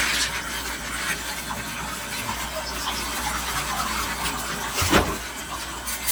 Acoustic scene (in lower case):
kitchen